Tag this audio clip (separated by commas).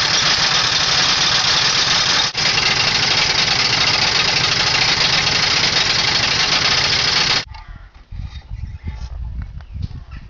Vehicle, Engine